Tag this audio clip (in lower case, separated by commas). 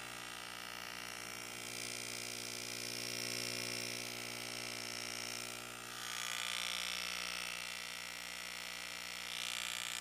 inside a small room